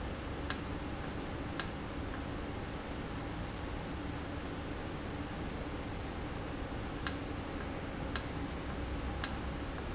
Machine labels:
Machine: valve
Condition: normal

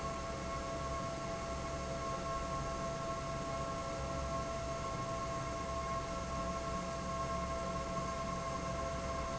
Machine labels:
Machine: fan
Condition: normal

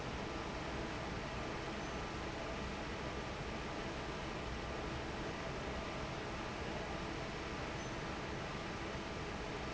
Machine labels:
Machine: fan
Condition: normal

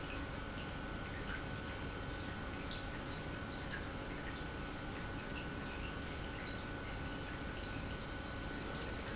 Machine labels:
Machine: pump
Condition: normal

